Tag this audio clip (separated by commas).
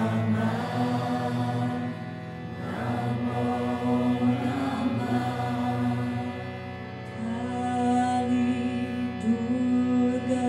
Music, Mantra